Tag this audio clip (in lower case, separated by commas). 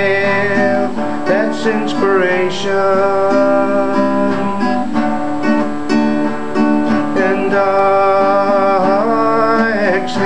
music